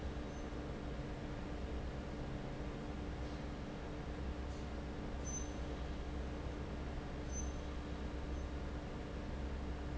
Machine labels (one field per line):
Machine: fan